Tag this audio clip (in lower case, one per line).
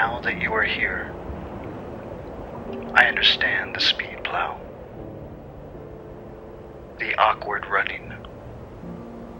outside, rural or natural
speech
music